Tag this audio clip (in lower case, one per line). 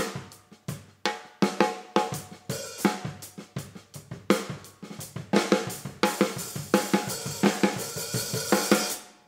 music
snare drum
playing snare drum